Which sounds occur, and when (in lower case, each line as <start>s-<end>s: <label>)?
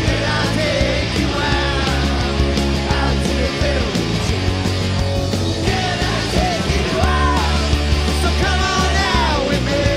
0.0s-2.3s: male singing
0.0s-9.9s: music
2.9s-3.9s: male singing
5.7s-6.6s: male singing
6.9s-7.8s: male singing
8.3s-9.9s: male singing